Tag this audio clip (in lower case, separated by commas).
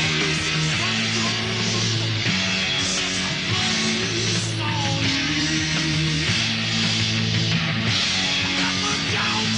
punk rock